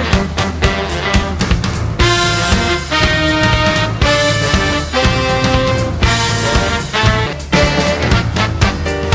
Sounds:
music

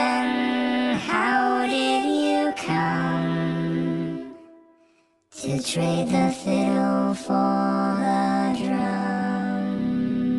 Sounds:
music

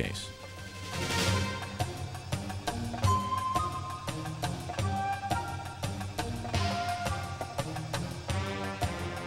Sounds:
music
speech

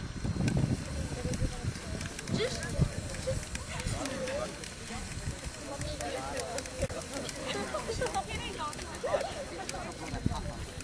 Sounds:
speech

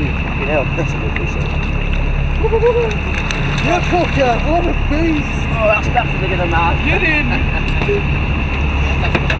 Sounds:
speech

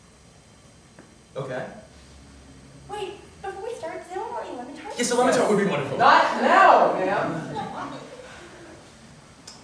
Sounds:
speech

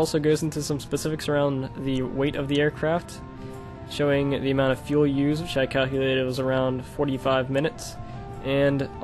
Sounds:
speech
music

